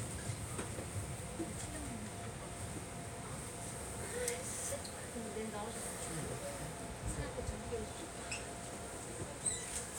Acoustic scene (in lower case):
subway train